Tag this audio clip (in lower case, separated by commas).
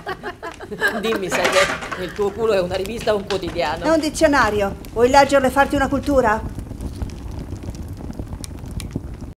speech